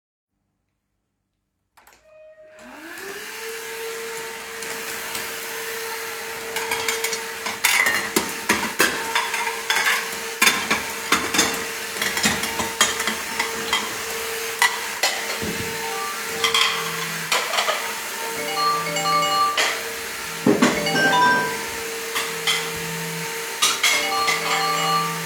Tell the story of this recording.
While I was vacuuming, my partner placed dishes into the drawer. At the same time, my phone rang.